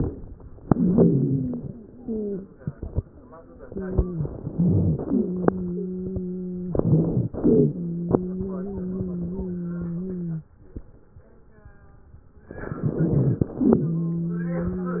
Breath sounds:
0.67-1.63 s: inhalation
0.67-1.63 s: wheeze
1.94-2.44 s: wheeze
3.64-4.26 s: wheeze
4.25-5.08 s: inhalation
4.42-5.08 s: rhonchi
5.05-6.71 s: wheeze
6.75-7.34 s: inhalation
6.75-7.34 s: wheeze
7.36-7.78 s: exhalation
7.36-10.51 s: wheeze
12.50-13.52 s: inhalation
12.50-13.52 s: crackles
13.57-15.00 s: exhalation
13.57-15.00 s: wheeze

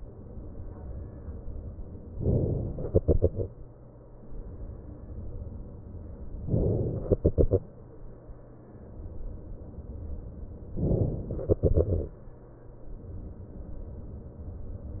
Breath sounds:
2.17-2.93 s: inhalation
2.93-4.25 s: exhalation
6.48-7.13 s: inhalation
7.13-8.47 s: exhalation
10.83-11.36 s: inhalation
11.36-12.58 s: exhalation

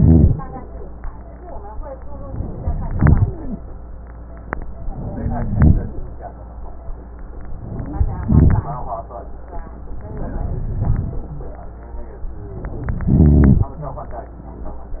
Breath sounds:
0.00-0.34 s: rhonchi
2.86-3.59 s: inhalation
2.88-3.27 s: rhonchi
3.38-3.59 s: wheeze
5.12-5.92 s: inhalation
5.14-5.62 s: wheeze
7.83-8.08 s: wheeze
7.97-8.69 s: inhalation
10.27-10.95 s: wheeze
10.27-11.16 s: inhalation
13.05-13.74 s: inhalation
13.05-13.74 s: rhonchi

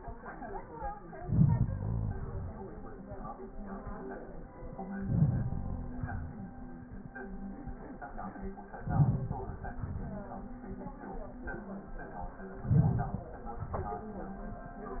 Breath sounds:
1.10-2.60 s: inhalation
4.77-6.55 s: inhalation
8.63-10.31 s: inhalation
12.56-14.15 s: inhalation

